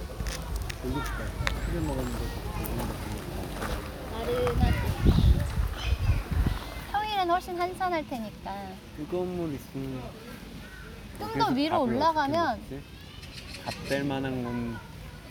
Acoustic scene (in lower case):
park